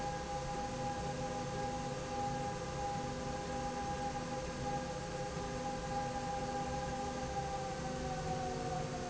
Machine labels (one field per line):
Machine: slide rail